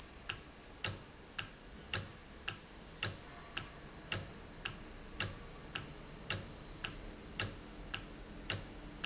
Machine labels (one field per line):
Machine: valve